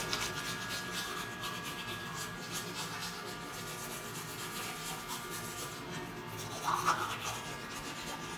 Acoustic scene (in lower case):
restroom